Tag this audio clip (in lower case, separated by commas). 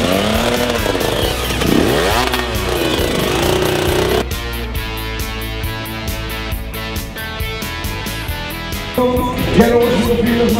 music, speech, rock and roll